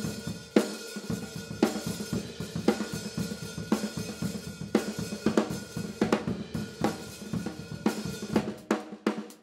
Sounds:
hi-hat
music
percussion
drum
musical instrument
drum kit
cymbal

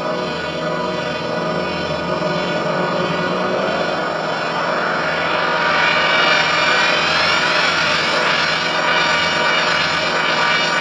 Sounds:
cacophony

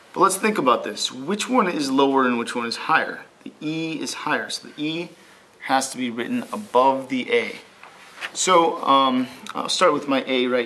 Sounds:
speech

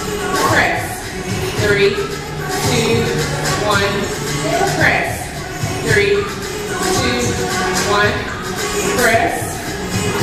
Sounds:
speech
music

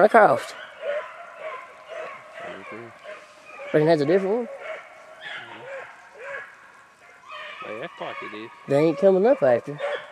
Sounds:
speech

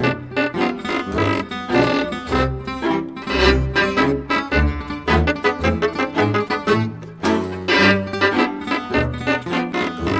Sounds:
pizzicato

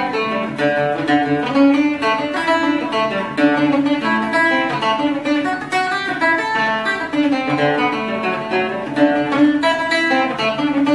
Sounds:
playing mandolin

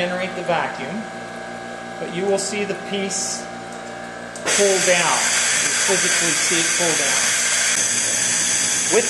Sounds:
speech

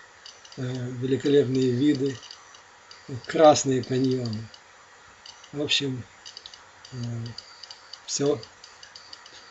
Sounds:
speech

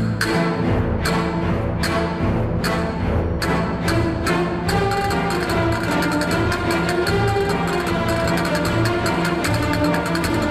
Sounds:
playing castanets

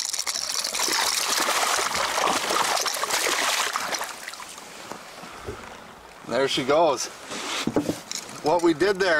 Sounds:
outside, rural or natural
speech

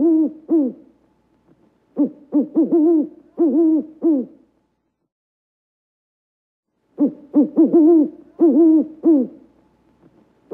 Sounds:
owl hooting

